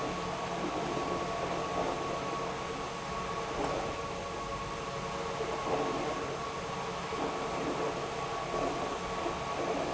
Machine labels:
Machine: pump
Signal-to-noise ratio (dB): -6 dB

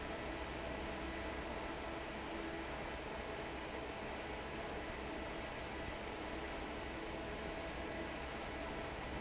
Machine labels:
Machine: fan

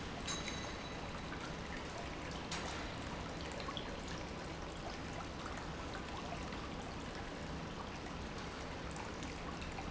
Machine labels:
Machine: pump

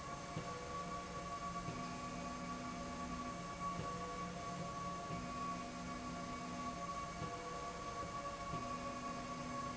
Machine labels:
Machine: slide rail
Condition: normal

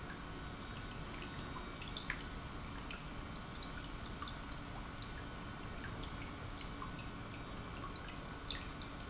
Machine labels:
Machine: pump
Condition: normal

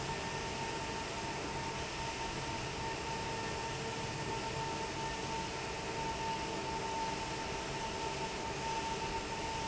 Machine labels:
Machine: fan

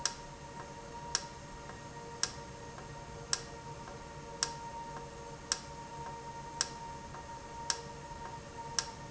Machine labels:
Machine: valve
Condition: normal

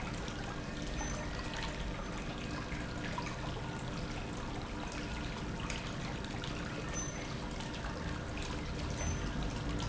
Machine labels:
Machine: pump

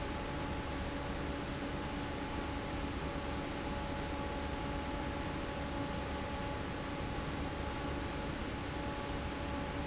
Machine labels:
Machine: fan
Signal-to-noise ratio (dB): -6 dB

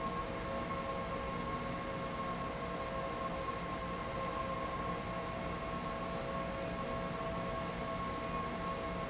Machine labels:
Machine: fan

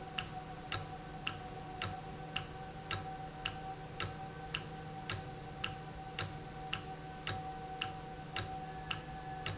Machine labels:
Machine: valve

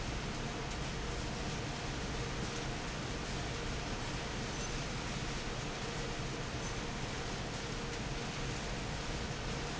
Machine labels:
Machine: fan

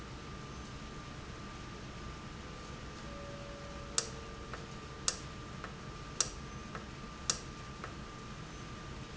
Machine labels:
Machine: valve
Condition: normal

